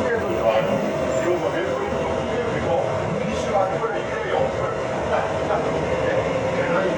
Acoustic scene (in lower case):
subway train